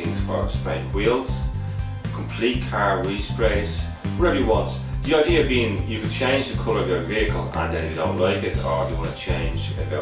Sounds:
Speech, Music

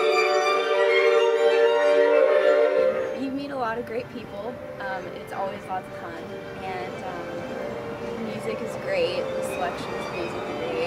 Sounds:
Music, Speech

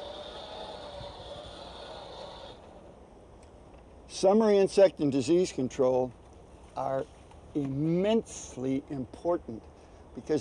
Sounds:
Speech

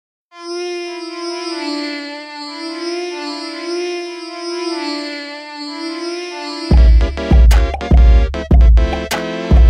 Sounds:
Musical instrument, Music

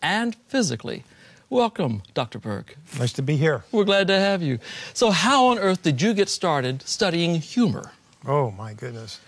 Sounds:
Speech

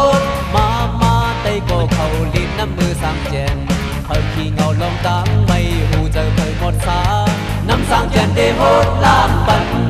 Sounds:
Music

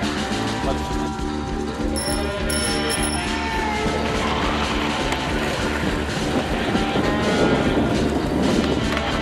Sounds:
Speech, outside, urban or man-made, Music, Skateboard

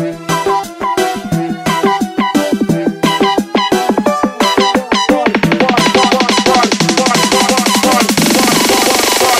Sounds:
Electronic music, Music, Dubstep

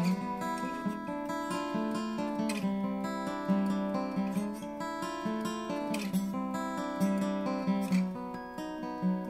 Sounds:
Music

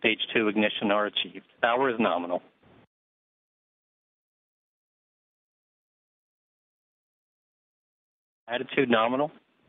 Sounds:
Speech

